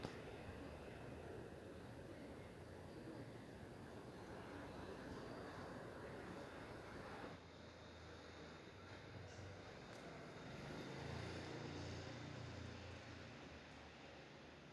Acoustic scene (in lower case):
residential area